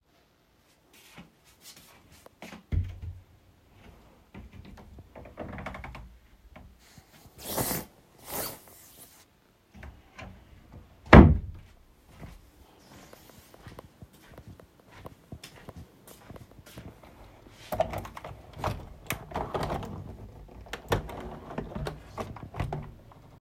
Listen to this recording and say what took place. I walked to my wardrobe. I opened it, brought out my jacket and closed the wardrobe. Then I walked across the room, opened the window and closed it